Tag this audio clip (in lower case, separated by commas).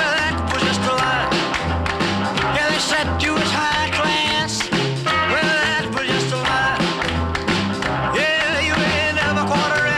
music